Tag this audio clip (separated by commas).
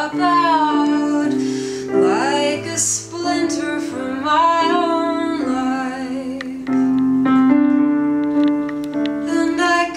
Music